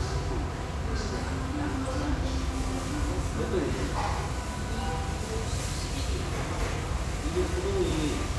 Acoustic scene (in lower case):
restaurant